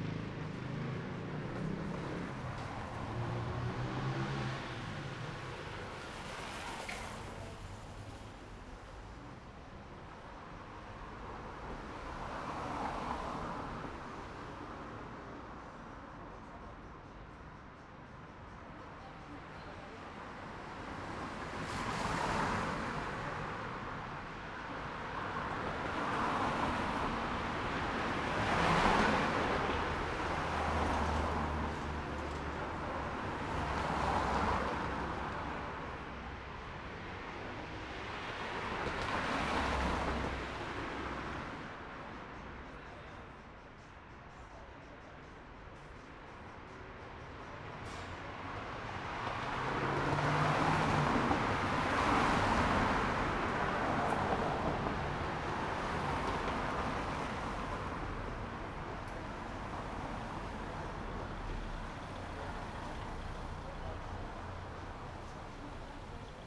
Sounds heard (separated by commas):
car engine accelerating, motorcycle, car engine idling, car, motorcycle engine idling, car wheels rolling, motorcycle engine accelerating, people talking